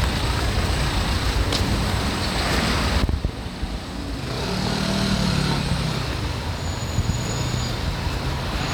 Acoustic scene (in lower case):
street